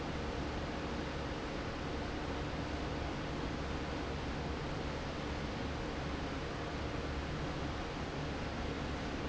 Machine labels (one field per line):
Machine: fan